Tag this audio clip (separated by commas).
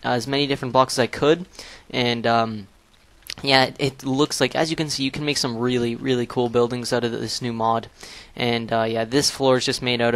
Speech